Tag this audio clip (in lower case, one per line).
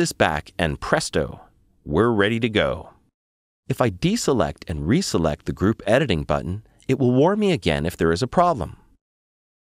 speech